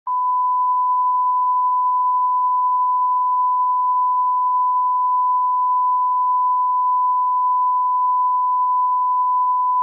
Continuous mechanical beep